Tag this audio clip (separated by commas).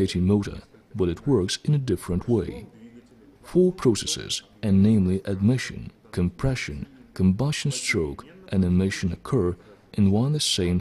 Speech